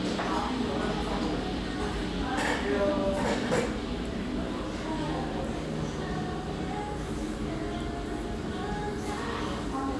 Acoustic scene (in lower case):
restaurant